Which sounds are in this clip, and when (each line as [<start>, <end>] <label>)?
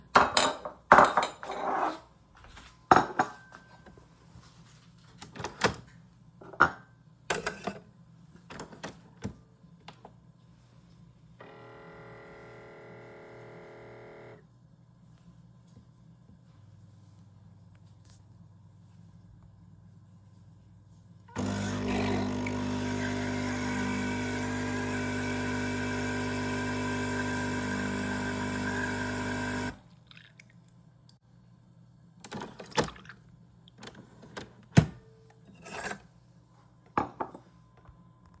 [0.09, 4.11] cutlery and dishes
[6.46, 6.91] cutlery and dishes
[11.32, 14.57] coffee machine
[21.27, 30.05] coffee machine
[35.51, 37.78] cutlery and dishes